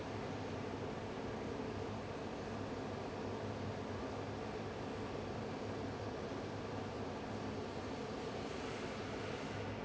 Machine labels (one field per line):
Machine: fan